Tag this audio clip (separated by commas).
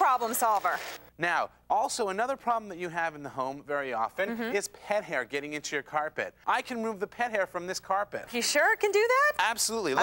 Speech